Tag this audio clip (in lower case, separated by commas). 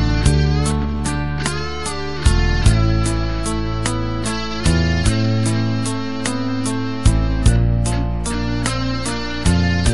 plucked string instrument, music, guitar, strum, musical instrument